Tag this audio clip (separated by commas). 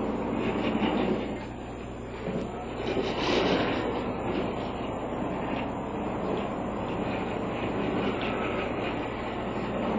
Speech, Sliding door